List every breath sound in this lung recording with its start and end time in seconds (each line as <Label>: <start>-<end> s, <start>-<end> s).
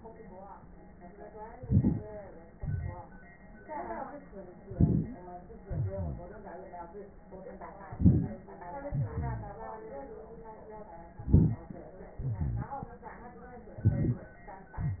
Inhalation: 1.59-2.09 s, 4.71-5.20 s, 7.93-8.41 s, 11.16-11.84 s
Exhalation: 2.58-3.08 s, 5.69-6.55 s, 8.90-9.87 s, 12.24-12.94 s
Wheeze: 5.01-5.17 s
Rhonchi: 1.59-2.07 s, 5.67-6.26 s, 8.88-9.52 s, 12.22-12.64 s